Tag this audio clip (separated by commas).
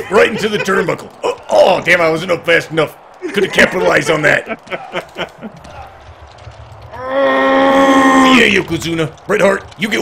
Speech